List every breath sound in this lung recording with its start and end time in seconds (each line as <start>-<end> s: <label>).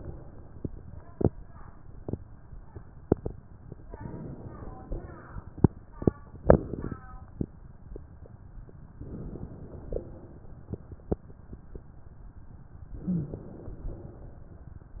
3.95-4.88 s: inhalation
4.93-5.86 s: exhalation
8.96-9.89 s: inhalation
9.94-10.87 s: exhalation
12.90-13.72 s: inhalation
13.04-13.43 s: rhonchi
13.83-15.00 s: exhalation